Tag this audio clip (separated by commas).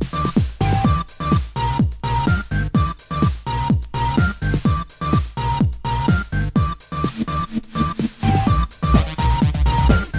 Music, Techno, Electronic music